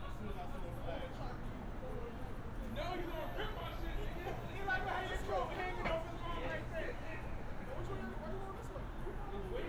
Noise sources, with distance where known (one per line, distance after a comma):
person or small group shouting, near